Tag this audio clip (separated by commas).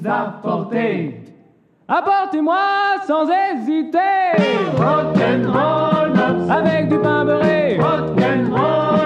Music, Rock and roll